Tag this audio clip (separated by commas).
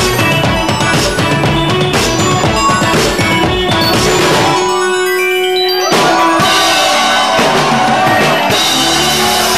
Music